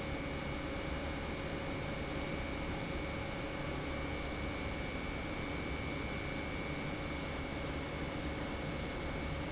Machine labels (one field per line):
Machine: pump